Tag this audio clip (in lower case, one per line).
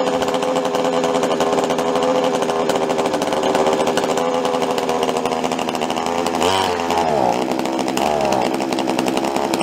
hedge trimmer running